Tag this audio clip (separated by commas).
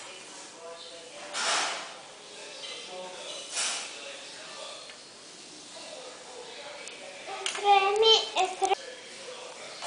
Speech